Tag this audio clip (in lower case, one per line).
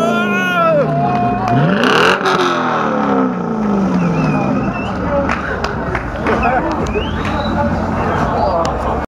speech